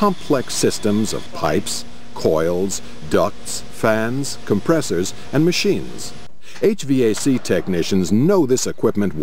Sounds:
speech
air conditioning

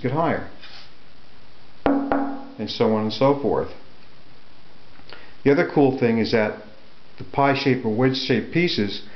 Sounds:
speech

